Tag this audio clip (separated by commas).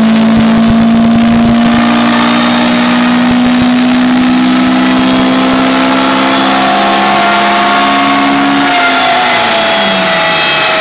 Vehicle, vroom, Car, Engine